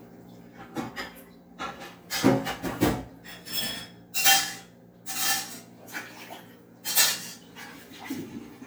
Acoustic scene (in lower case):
kitchen